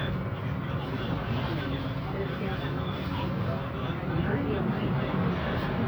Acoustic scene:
bus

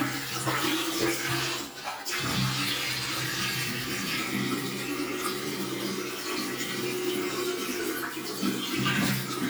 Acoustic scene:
restroom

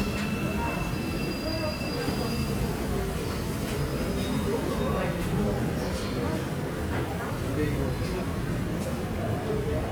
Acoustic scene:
subway station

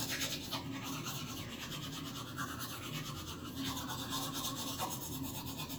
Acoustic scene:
restroom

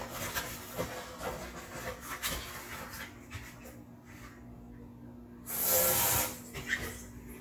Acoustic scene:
kitchen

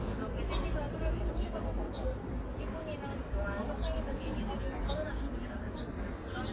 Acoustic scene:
park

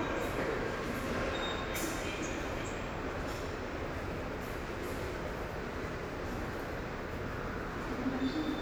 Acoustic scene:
subway station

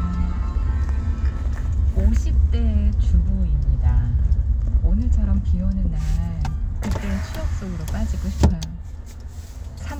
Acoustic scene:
car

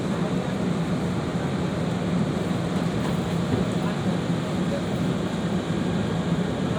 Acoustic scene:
subway train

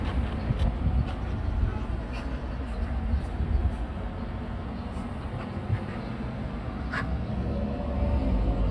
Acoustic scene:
residential area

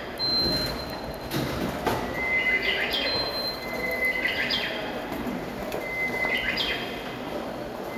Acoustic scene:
subway station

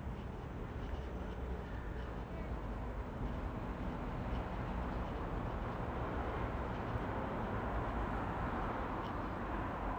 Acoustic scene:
residential area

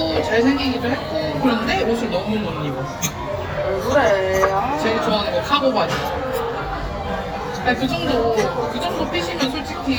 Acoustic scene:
crowded indoor space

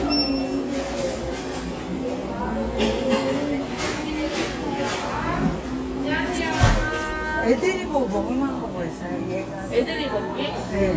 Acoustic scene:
cafe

